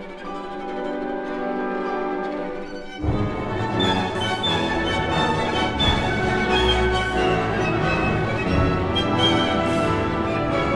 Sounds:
fiddle, music, musical instrument

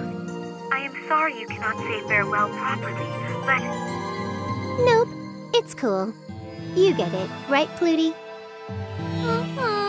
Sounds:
jingle, music, speech

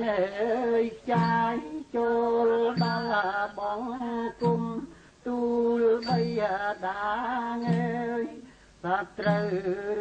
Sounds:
music, inside a large room or hall

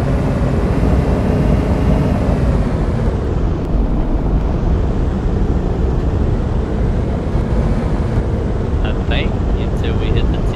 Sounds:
speech

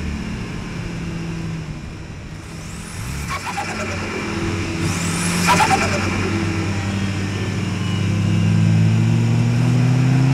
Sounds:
vroom, heavy engine (low frequency), vehicle

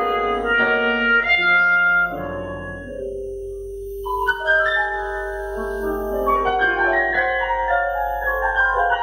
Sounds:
clarinet, music, piano

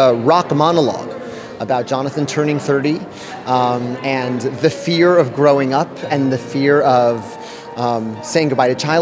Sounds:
speech, music

